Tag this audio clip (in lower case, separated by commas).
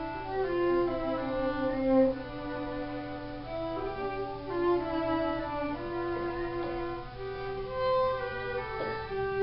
music, musical instrument, fiddle